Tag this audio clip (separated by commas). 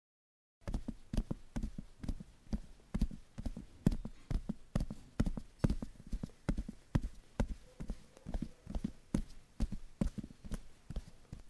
livestock, Animal